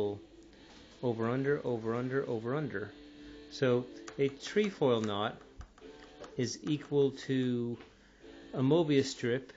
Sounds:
speech

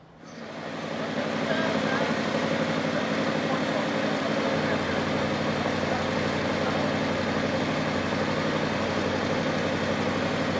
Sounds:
speech

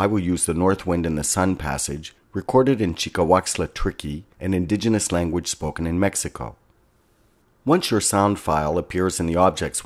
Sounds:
speech

